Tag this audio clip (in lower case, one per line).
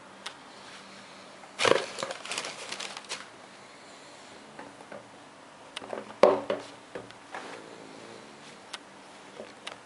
inside a small room